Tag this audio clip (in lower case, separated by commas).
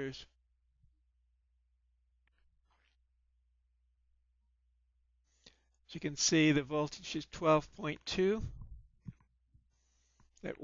speech